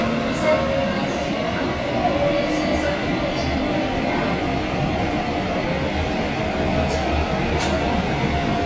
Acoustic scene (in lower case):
subway train